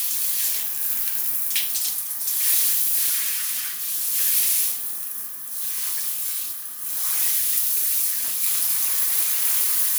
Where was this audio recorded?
in a restroom